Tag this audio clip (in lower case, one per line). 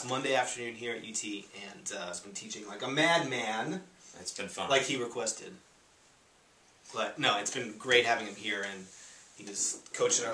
speech